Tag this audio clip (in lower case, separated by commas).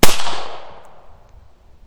explosion, gunshot